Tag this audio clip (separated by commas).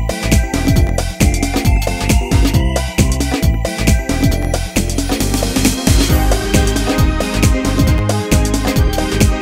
Music, Soundtrack music